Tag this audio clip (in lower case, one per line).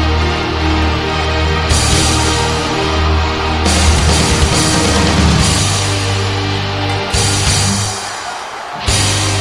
music
speech